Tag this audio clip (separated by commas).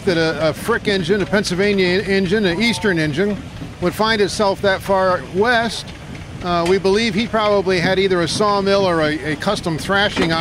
Speech